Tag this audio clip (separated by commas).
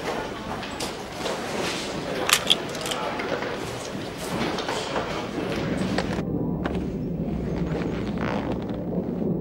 Speech